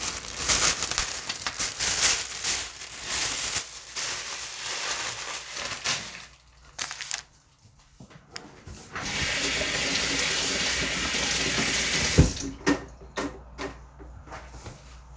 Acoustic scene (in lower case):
kitchen